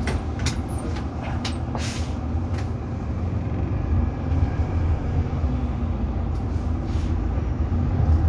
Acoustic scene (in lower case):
bus